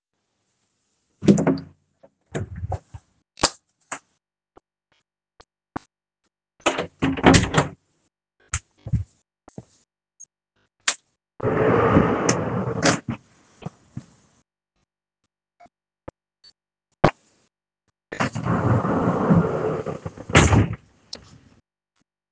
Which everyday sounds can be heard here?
door, light switch, wardrobe or drawer